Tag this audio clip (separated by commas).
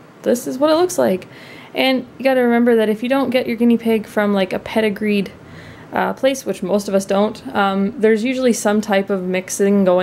Speech